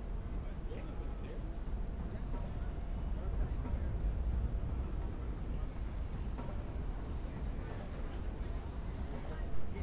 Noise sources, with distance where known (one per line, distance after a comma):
person or small group talking